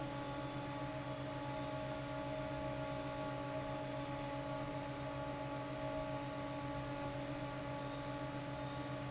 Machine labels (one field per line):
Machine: fan